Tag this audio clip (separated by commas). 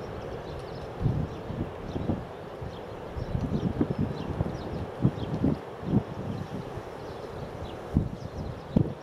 Animal, Bird